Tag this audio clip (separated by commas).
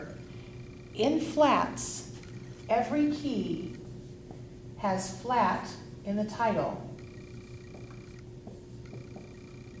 Speech